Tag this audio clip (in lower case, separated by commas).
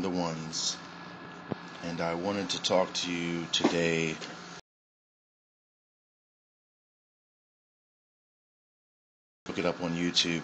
speech